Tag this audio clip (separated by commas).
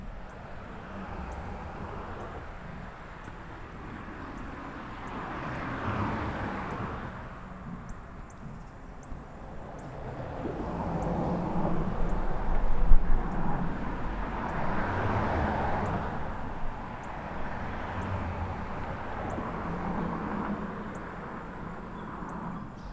Vehicle, Cricket, Wild animals, Animal, Insect, Motor vehicle (road)